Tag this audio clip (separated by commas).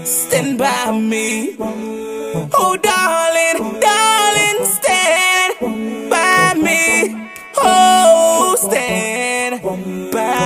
Music, Exciting music